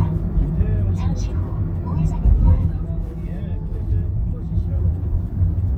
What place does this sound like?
car